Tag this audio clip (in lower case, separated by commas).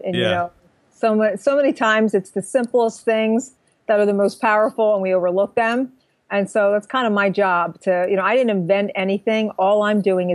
speech